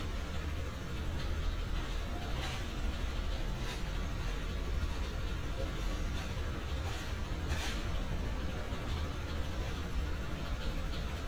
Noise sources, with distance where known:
engine of unclear size, near

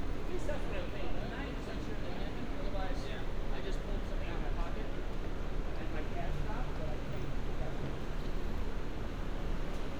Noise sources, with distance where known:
person or small group talking

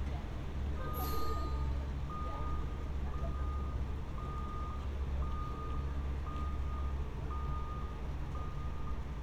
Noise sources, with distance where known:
reverse beeper, far; person or small group talking, far

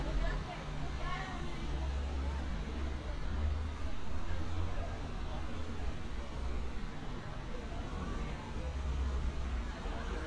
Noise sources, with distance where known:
person or small group talking

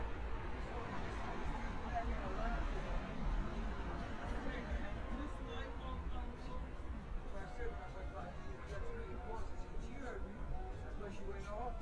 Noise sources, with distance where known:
music from a fixed source; person or small group talking, near

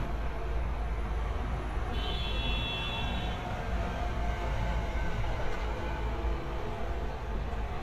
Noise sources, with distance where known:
large-sounding engine; car horn

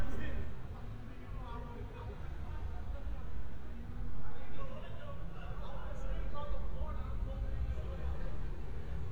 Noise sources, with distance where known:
unidentified human voice

